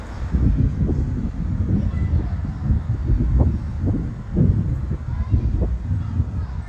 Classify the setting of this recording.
residential area